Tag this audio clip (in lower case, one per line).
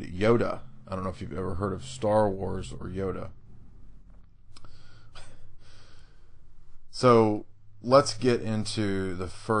speech